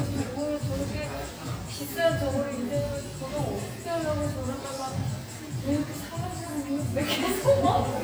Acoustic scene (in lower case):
cafe